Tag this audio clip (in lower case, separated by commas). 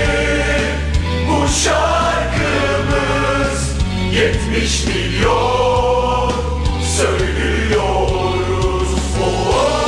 music